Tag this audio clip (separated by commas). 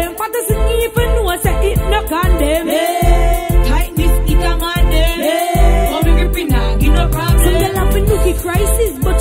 Pop music, Music, Rhythm and blues